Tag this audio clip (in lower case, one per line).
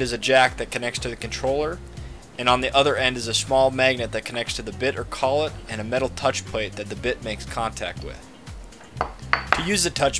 music
speech